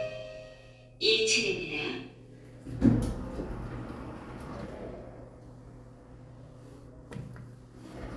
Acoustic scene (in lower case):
elevator